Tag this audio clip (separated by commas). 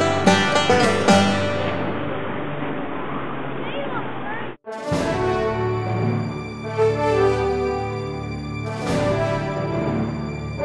Vehicle, Water vehicle, Theme music